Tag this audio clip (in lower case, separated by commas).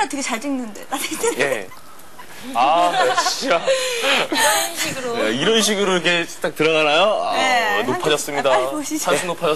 speech